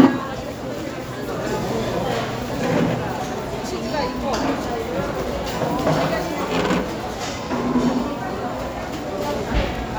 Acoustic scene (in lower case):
crowded indoor space